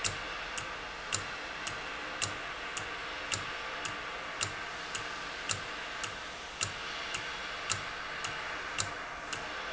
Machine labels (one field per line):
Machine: valve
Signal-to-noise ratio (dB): -6 dB